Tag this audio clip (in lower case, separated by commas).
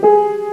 keyboard (musical), music, piano, musical instrument